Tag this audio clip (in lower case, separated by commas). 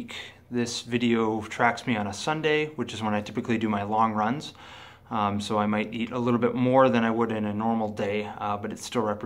inside a small room, speech